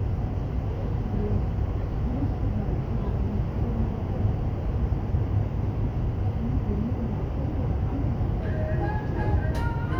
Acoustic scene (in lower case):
subway train